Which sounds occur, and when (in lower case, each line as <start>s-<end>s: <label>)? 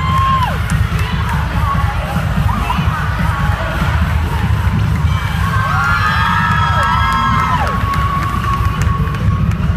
0.0s-9.7s: crowd
0.0s-9.7s: mechanisms
0.0s-9.7s: music
1.0s-4.1s: female speech
5.3s-9.4s: shout
9.4s-9.5s: clapping